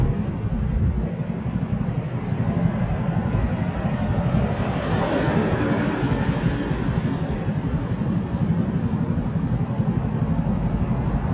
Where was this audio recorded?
on a street